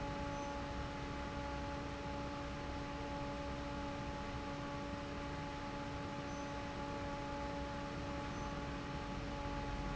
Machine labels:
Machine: fan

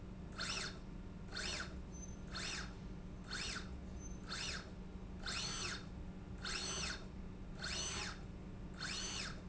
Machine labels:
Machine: slide rail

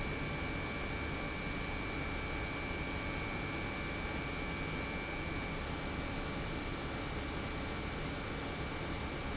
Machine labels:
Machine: pump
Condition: normal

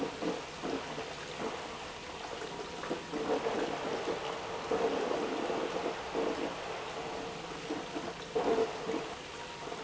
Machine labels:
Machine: pump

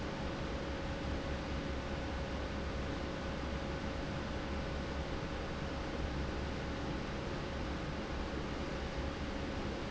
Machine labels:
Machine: fan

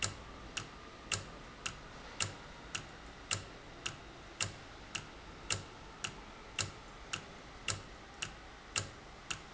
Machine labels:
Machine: valve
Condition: normal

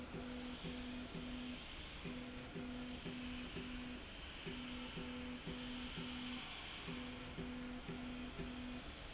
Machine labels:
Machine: slide rail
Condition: normal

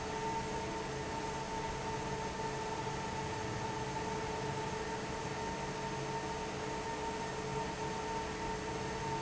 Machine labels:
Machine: fan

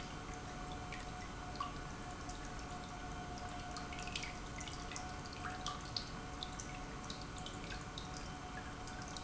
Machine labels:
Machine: pump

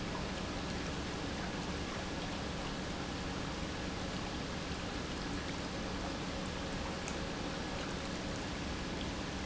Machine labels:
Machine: pump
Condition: normal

